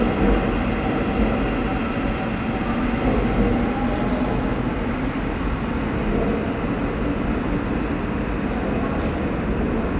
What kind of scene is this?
subway station